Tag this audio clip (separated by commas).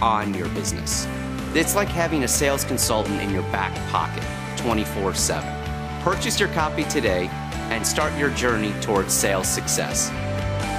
Speech, Music